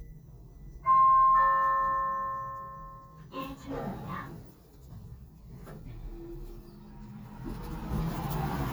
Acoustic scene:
elevator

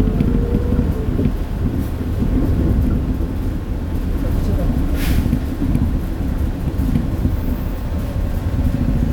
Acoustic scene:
bus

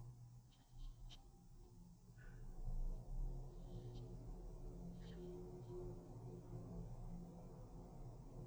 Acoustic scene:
elevator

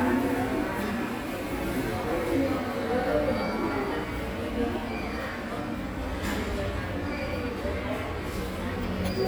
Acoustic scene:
subway station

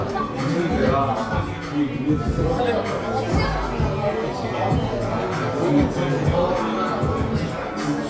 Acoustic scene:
crowded indoor space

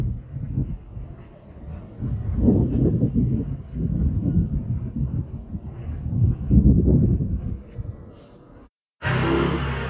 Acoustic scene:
residential area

